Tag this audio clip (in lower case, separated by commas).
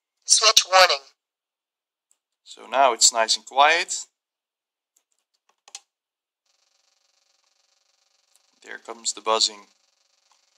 speech